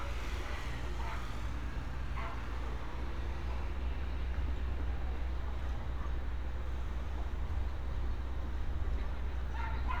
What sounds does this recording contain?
dog barking or whining